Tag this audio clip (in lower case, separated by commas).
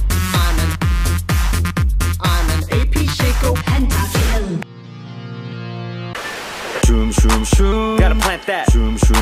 disco